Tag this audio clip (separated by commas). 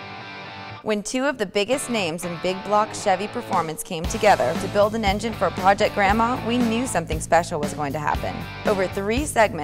Music, Speech